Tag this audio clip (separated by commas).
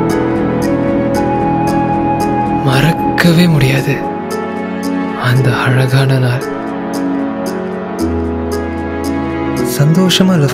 Speech, Music